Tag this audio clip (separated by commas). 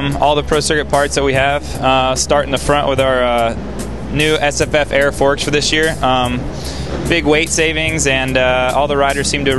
Speech, Music